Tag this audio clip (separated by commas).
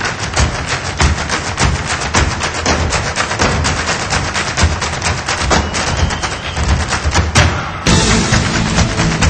Music